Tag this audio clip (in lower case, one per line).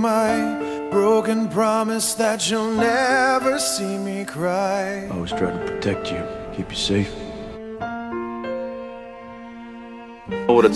music
speech